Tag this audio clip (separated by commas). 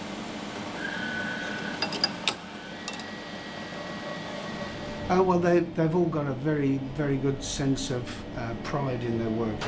Speech, inside a large room or hall